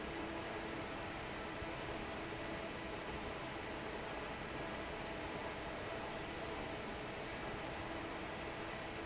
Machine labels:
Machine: fan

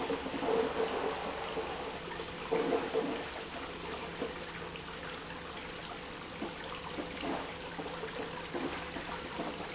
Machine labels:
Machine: pump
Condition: abnormal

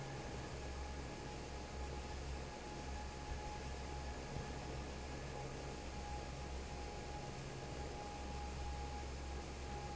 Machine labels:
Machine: fan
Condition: normal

